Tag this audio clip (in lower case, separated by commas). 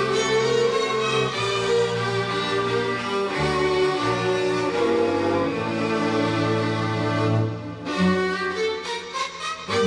string section, bowed string instrument, music, violin